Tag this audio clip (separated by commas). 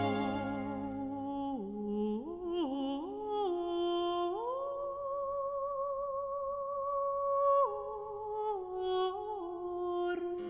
Music, Opera